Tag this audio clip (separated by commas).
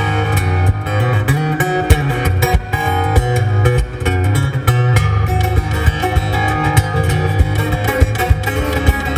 Music